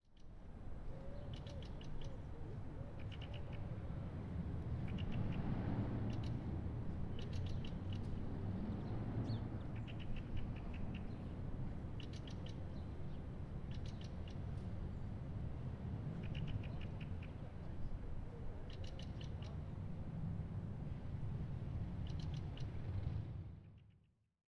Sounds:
animal, bird song, wild animals, bird

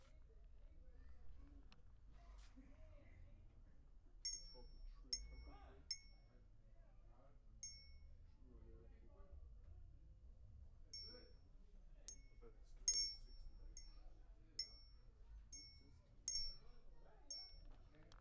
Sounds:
glass, chink

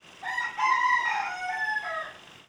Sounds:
chicken, livestock, fowl, animal

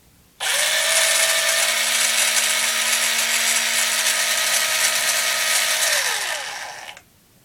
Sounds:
engine, tools, power tool, drill

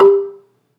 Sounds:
percussion, music, mallet percussion, musical instrument, xylophone

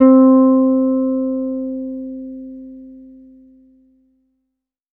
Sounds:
music, guitar, plucked string instrument, musical instrument, bass guitar

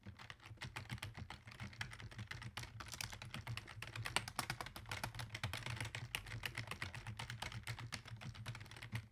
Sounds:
home sounds, computer keyboard, typing

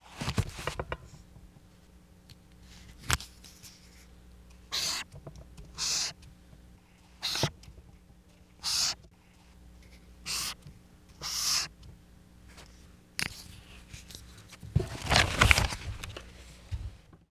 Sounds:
home sounds, writing

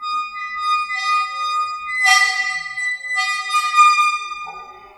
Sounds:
squeak

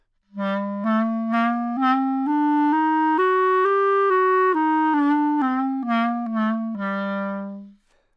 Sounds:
wind instrument, musical instrument, music

